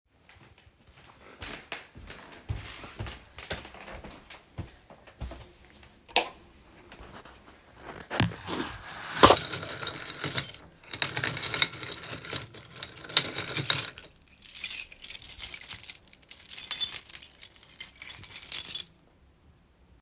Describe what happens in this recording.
I walk from the living room to the hallway with my phone. Place it on the drawer and start searching for the keys in a keybowl.